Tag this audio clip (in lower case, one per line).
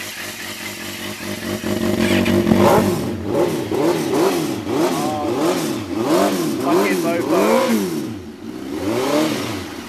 speech